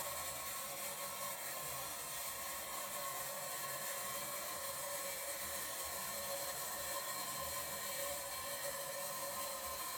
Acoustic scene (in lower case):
restroom